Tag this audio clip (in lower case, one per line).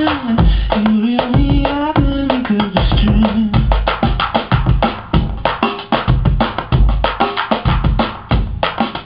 music